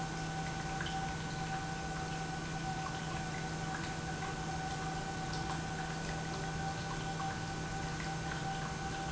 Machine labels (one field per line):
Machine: pump